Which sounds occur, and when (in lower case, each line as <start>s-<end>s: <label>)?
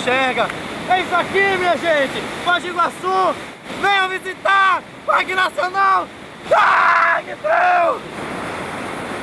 0.0s-0.4s: man speaking
0.0s-9.2s: waterfall
0.8s-2.2s: man speaking
2.4s-3.3s: man speaking
3.7s-4.8s: man speaking
5.0s-6.0s: man speaking
6.4s-7.3s: bellow
7.4s-8.0s: bellow